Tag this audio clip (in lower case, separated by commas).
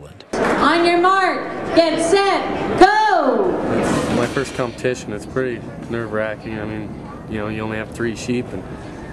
speech